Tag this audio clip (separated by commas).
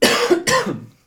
Respiratory sounds, Cough